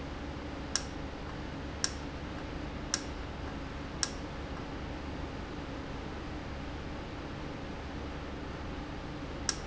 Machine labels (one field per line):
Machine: valve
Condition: normal